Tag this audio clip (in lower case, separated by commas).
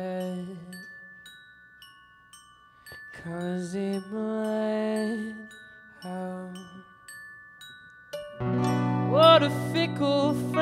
percussion, guitar, music, glockenspiel, plucked string instrument, musical instrument